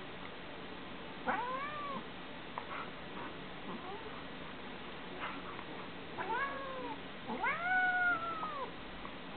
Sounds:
caterwaul, domestic animals, cat, cat caterwauling, animal

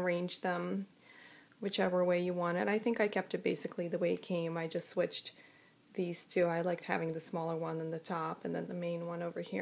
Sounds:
speech

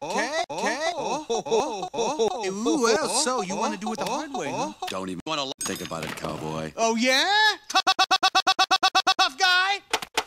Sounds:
speech

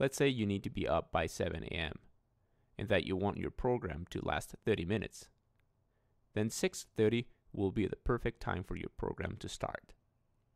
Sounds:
speech

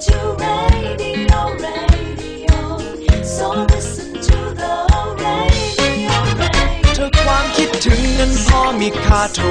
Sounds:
music, inside a small room, singing

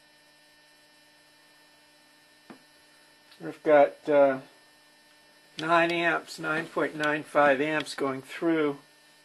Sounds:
speech

